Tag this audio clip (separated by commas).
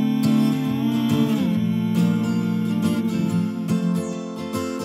Music